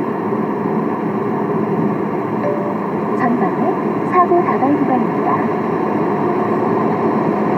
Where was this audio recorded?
in a car